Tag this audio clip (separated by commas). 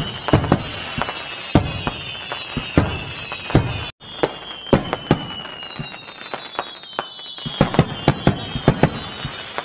lighting firecrackers